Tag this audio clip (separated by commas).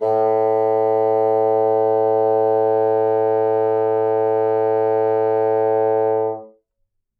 Music, Musical instrument, Wind instrument